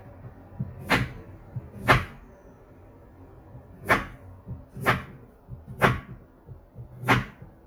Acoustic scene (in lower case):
kitchen